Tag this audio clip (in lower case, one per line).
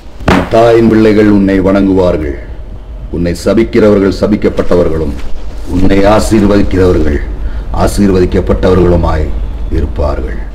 speech